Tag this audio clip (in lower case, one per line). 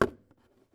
knock
home sounds
door